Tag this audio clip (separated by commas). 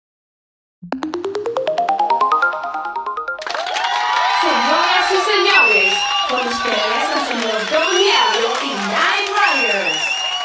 Speech, Ringtone